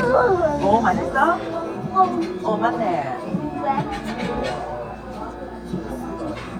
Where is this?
in a restaurant